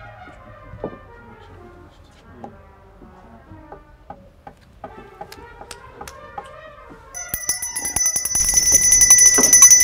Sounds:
brass instrument, trumpet

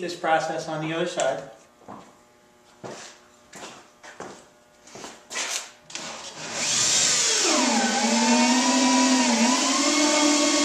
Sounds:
speech, drill

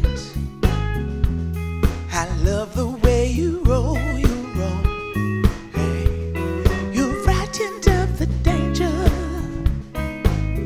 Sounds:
music

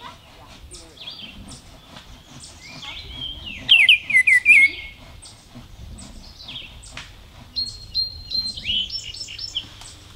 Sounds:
baltimore oriole calling

